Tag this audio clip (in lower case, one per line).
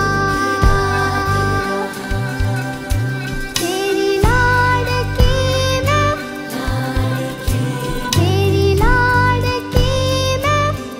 child singing